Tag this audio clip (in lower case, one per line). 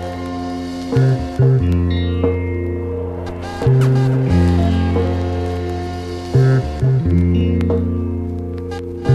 music
mantra